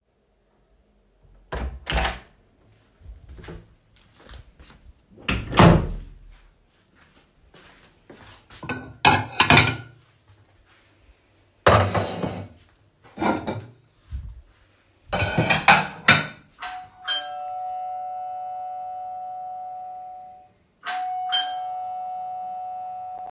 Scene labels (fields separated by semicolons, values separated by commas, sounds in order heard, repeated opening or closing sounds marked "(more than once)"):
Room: kitchen; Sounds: door (more than once), footsteps, cutlery and dishes, bell ringing